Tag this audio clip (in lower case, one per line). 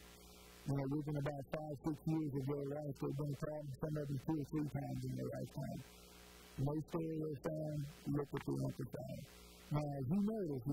speech